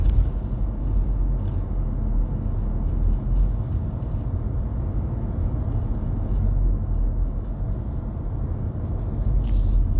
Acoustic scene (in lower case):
car